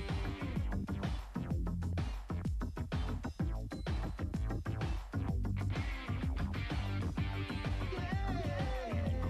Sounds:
Rhythm and blues, Music, Dance music

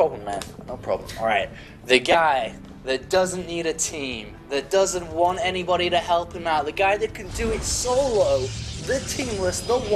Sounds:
Speech, Squish, Music

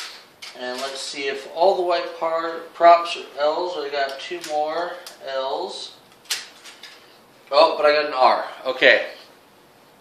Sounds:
Speech

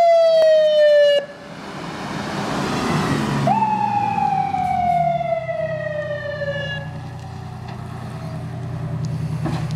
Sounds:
Vehicle

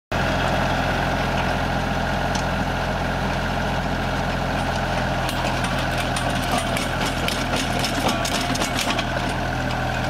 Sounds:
tractor digging

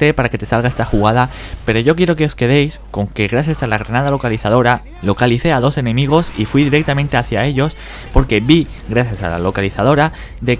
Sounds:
Speech

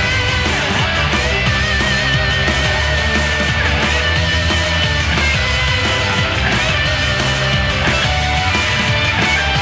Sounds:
Music

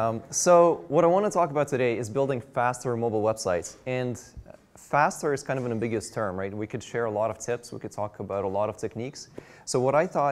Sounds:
Speech

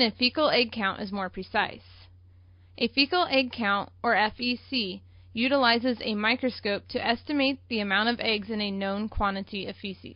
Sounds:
Speech

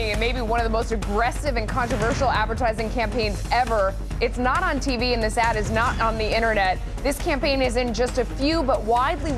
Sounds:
Speech, Music

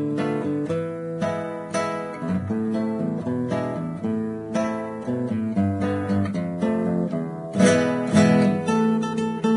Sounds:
Musical instrument, Plucked string instrument, Guitar, Music, Acoustic guitar

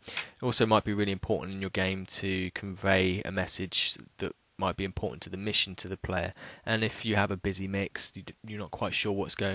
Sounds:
Speech

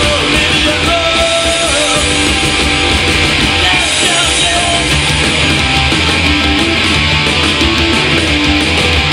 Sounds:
Music

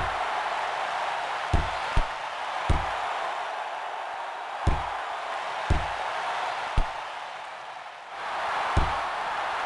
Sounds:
Chop

